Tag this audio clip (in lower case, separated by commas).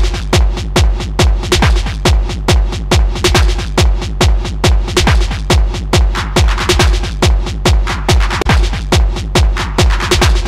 techno, music, electronic music